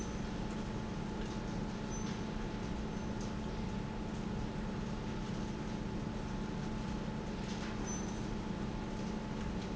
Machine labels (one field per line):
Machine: pump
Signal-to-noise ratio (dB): -6 dB